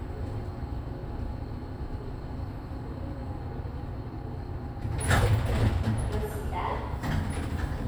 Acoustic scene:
elevator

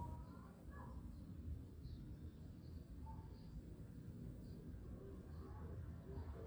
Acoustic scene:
residential area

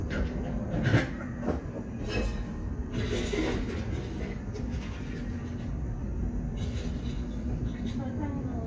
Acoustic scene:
cafe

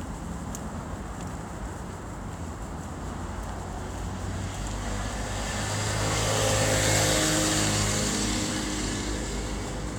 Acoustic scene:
street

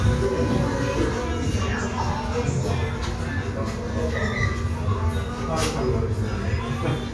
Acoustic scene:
crowded indoor space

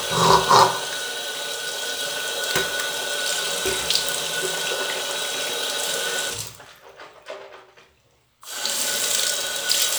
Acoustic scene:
restroom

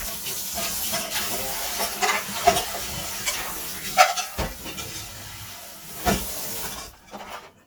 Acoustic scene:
kitchen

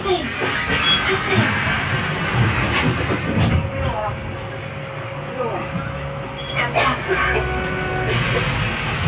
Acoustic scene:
bus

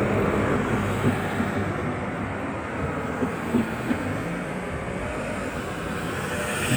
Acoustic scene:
street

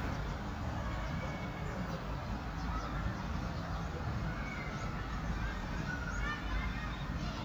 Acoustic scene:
residential area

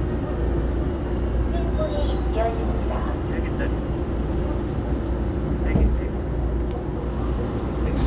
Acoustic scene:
subway train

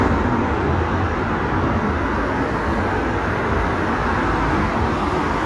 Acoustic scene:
street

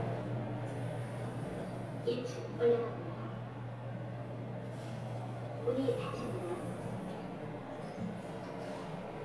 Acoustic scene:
elevator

